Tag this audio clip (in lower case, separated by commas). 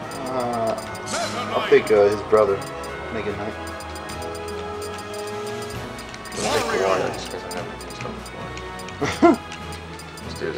speech, music